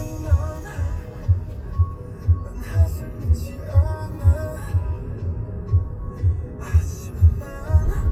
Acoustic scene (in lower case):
car